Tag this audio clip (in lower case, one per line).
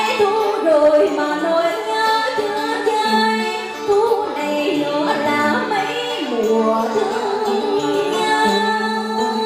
singing
music
female singing